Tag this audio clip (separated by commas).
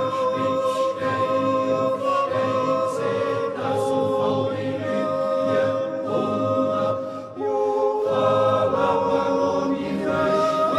yodelling